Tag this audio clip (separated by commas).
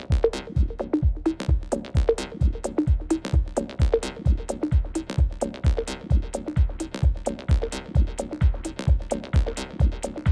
Dance music, Music